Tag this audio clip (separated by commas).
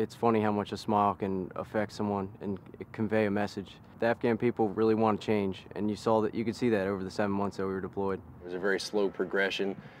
Speech